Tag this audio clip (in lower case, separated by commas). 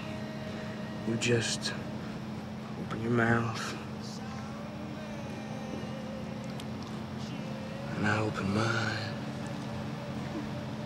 music, speech